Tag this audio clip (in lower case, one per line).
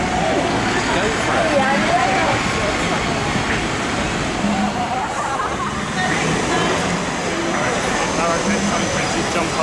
speech
engine